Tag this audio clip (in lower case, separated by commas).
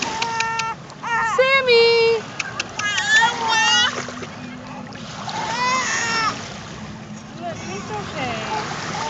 speech, splatter, splashing water